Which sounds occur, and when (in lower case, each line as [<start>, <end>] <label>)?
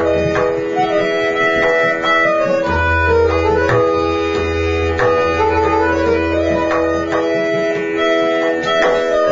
[0.00, 9.31] music